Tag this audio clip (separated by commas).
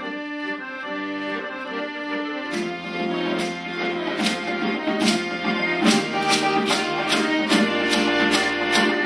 Pop music, Music